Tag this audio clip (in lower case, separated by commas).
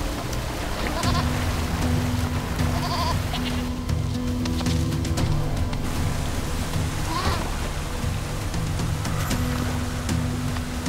goat bleating